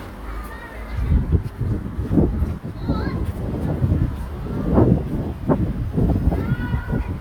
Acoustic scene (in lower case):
residential area